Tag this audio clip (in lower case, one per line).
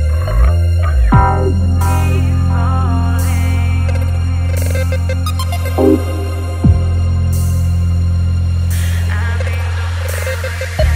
music
electronic music